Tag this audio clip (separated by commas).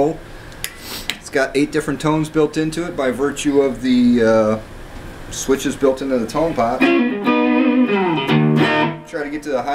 Musical instrument, Guitar, Music, Strum, Speech, Plucked string instrument